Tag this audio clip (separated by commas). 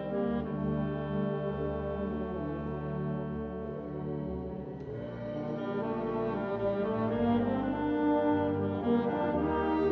Music